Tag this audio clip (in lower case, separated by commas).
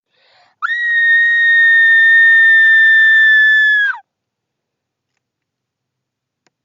screaming, human voice